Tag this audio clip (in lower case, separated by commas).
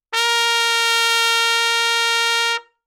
brass instrument, music, musical instrument, trumpet